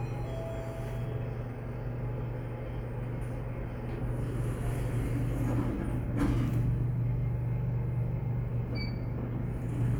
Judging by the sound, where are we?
in an elevator